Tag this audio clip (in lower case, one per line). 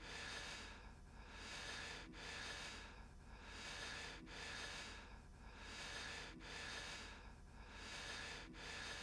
snort